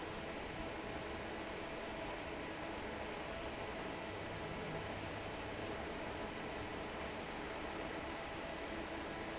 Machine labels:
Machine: fan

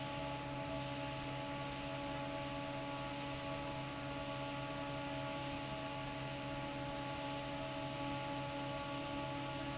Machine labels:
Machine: fan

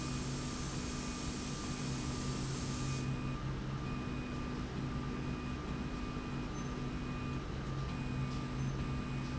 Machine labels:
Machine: slide rail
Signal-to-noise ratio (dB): -6 dB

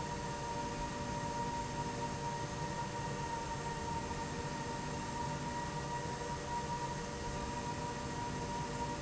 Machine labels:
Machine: slide rail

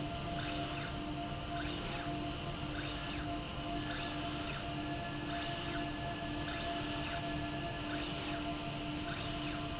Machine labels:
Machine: slide rail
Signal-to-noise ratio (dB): -6 dB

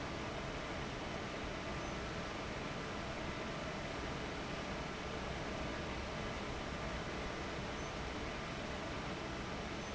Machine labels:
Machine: fan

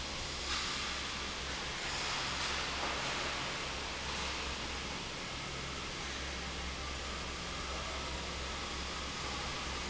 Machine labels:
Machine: fan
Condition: normal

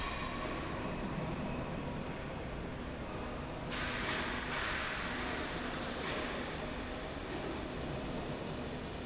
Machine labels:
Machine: slide rail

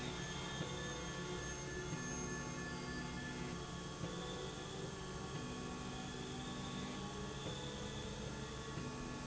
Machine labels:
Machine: slide rail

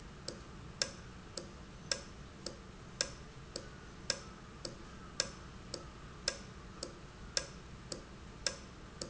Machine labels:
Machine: valve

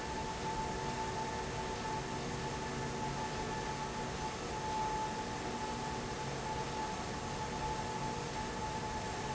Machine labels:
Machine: fan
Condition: abnormal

